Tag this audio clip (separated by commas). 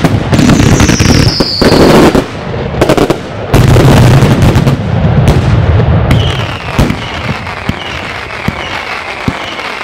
Fireworks